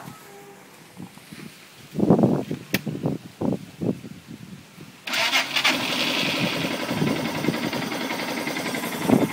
Someone starts a small engine outdoors